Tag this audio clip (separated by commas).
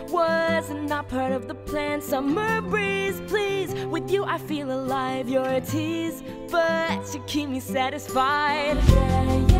Music, Happy music